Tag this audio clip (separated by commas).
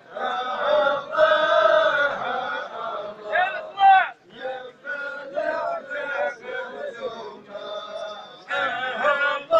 Speech, Mantra